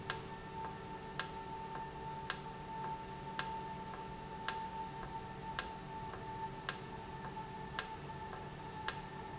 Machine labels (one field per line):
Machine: valve